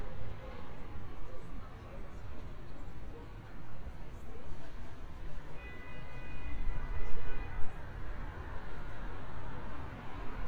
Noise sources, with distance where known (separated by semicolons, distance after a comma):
person or small group talking, far